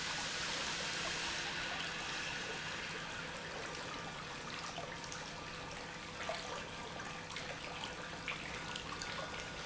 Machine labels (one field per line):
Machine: pump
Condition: normal